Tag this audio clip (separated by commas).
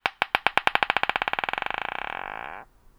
Glass